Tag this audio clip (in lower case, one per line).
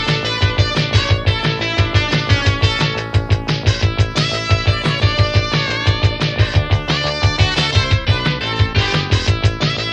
music